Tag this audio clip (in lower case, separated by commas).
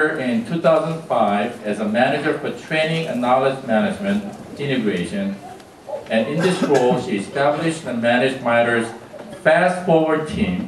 speech